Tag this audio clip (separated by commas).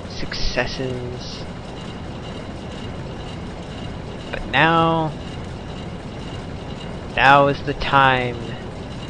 Speech